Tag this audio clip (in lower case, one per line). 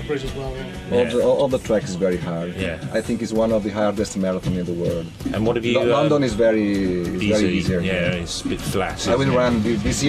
speech
music